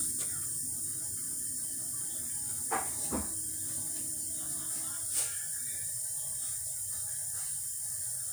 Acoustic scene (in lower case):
kitchen